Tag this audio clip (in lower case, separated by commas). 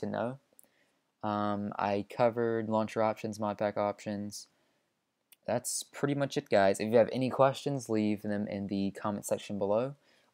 speech